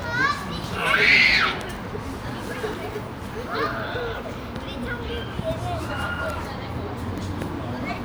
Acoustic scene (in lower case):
park